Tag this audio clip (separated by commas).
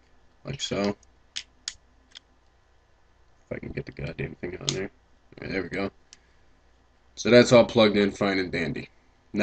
Speech, inside a small room